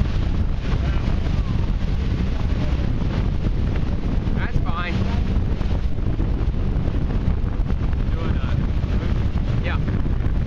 The sound of a watercraft engine, males speaking and water splashing in the background